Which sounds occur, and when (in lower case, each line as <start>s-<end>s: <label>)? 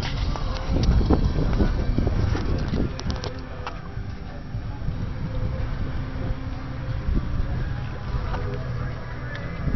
0.0s-3.4s: wind noise (microphone)
0.0s-9.7s: medium engine (mid frequency)
0.0s-9.7s: music
0.2s-1.0s: singing
0.3s-0.4s: tick
0.5s-0.6s: tick
0.8s-0.9s: tick
1.5s-1.5s: tick
2.3s-2.8s: footsteps
2.3s-3.8s: male speech
2.9s-3.4s: footsteps
3.6s-3.8s: footsteps
4.5s-6.3s: wind noise (microphone)
5.0s-5.6s: singing
5.3s-5.4s: tick
6.7s-8.9s: wind noise (microphone)
8.3s-8.4s: generic impact sounds
8.4s-8.6s: tick
8.7s-9.6s: singing
9.3s-9.4s: tick
9.5s-9.7s: wind noise (microphone)